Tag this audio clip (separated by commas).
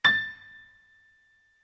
Keyboard (musical), Music, Musical instrument, Piano